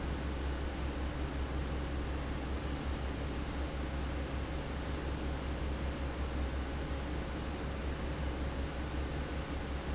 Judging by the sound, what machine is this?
fan